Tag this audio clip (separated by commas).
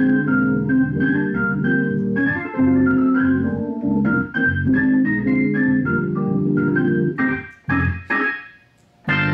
Organ, playing hammond organ, Hammond organ